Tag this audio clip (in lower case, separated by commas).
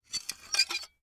home sounds, dishes, pots and pans, glass